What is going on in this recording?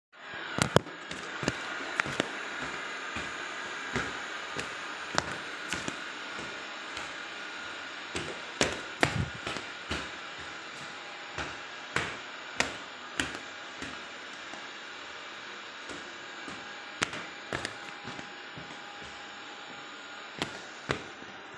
I was walking in the kitchen, while trying to avoid steping on robotic vacuum cleaner.